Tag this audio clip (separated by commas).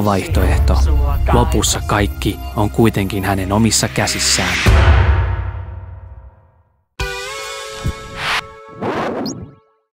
Speech, Music